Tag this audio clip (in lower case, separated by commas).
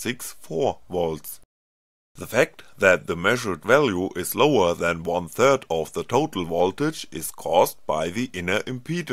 speech synthesizer